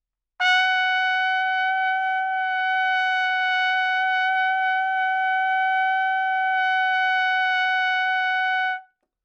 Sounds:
Trumpet, Brass instrument, Music, Musical instrument

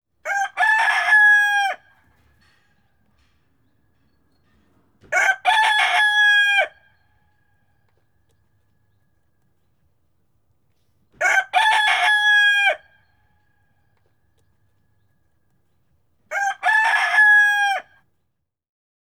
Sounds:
Animal, Fowl, rooster, livestock

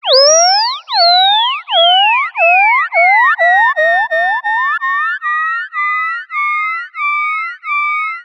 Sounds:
Animal

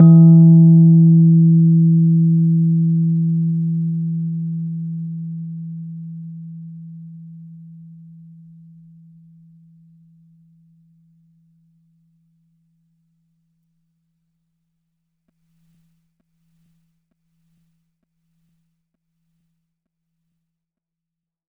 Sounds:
Music, Musical instrument, Keyboard (musical), Piano

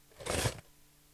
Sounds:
Domestic sounds, Cutlery

